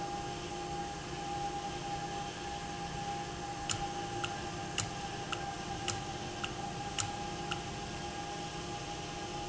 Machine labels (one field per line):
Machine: valve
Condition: normal